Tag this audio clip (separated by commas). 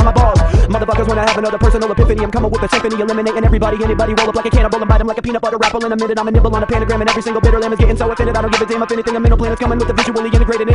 rapping